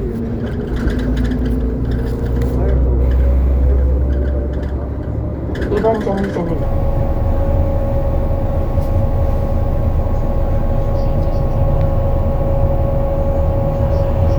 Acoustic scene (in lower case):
bus